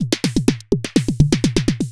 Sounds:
Drum kit, Musical instrument, Music, Percussion

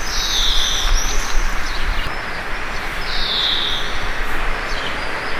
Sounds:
Wild animals, Animal, Bird

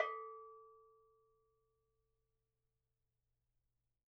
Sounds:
Bell

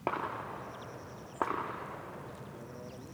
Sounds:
Explosion, gunfire

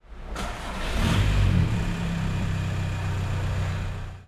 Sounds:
Engine, Engine starting

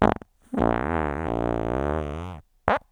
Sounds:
Fart

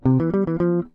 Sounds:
Plucked string instrument, Music, Guitar, Musical instrument

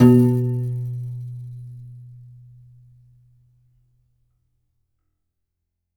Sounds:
Musical instrument, Keyboard (musical), Music, Piano

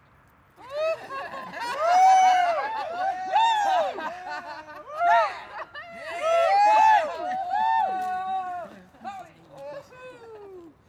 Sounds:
Human group actions, Cheering

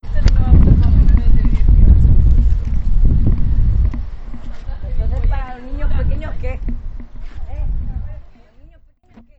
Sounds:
Wind

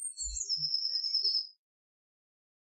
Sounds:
Animal, Bird, Wild animals, bird call

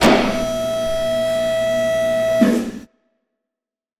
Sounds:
Mechanisms

